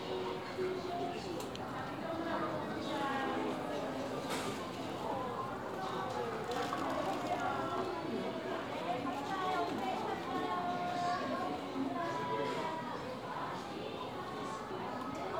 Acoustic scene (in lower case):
crowded indoor space